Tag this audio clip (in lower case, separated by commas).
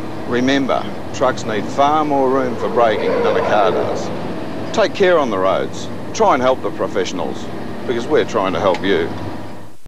car, truck, speech, vehicle